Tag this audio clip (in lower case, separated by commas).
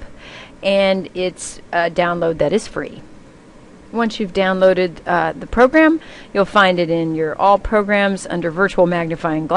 speech